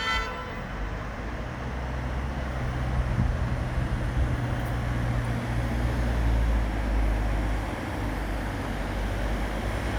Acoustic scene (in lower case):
street